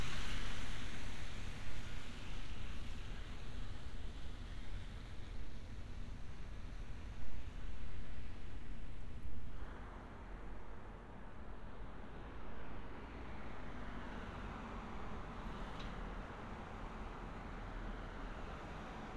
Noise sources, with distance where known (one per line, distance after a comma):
background noise